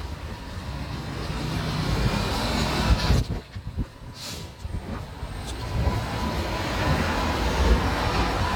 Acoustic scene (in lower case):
street